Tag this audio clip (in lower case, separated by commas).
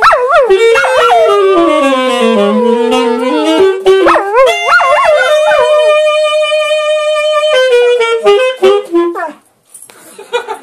dog, pets, yip, animal, bow-wow, music